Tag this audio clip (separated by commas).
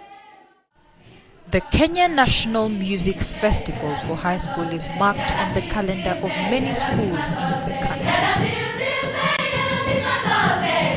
Speech, Music